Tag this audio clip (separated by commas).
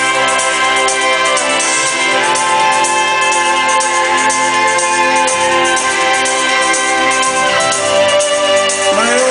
Music